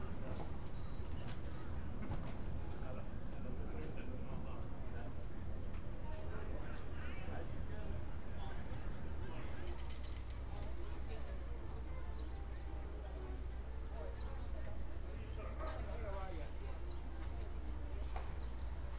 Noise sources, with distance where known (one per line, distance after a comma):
person or small group talking, near